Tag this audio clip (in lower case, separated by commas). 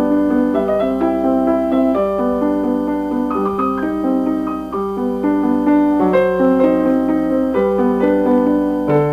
music